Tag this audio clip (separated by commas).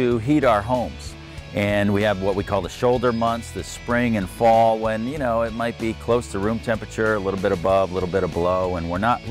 Speech, Music